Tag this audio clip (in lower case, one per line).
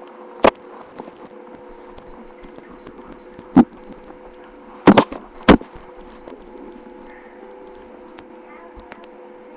speech